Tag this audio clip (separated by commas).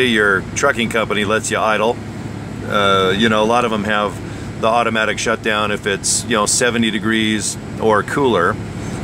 Vehicle, Speech